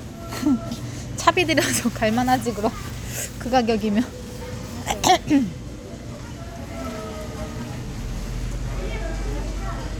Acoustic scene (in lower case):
crowded indoor space